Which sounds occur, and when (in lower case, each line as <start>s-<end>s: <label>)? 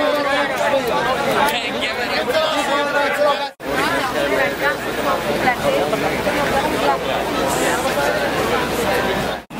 0.0s-9.4s: hubbub
0.0s-9.4s: background noise
1.4s-2.2s: man speaking
9.5s-9.5s: hubbub
9.5s-9.5s: background noise